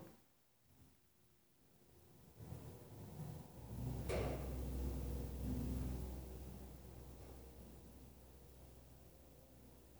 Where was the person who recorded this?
in an elevator